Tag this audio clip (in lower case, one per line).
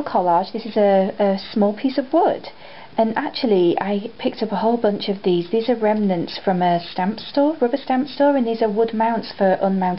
speech